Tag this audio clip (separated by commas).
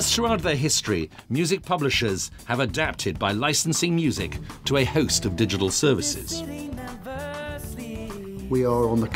Music, Speech, Soundtrack music, Theme music